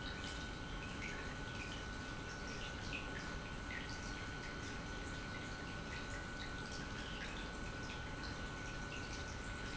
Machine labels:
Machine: pump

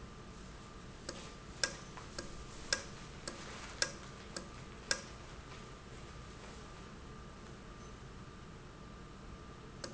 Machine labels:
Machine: valve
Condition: normal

